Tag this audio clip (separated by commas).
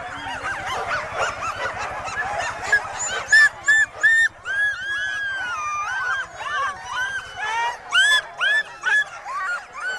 Bow-wow